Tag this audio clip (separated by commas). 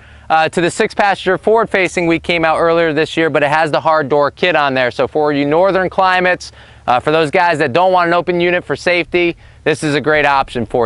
Speech